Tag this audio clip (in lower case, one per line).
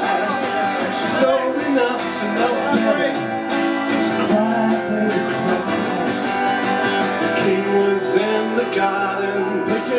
music
speech